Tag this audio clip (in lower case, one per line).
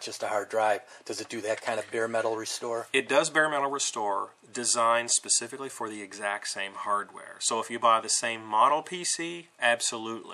inside a small room
speech